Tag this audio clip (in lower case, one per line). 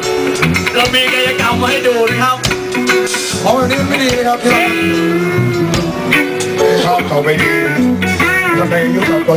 percussion
drum
musical instrument
music
cymbal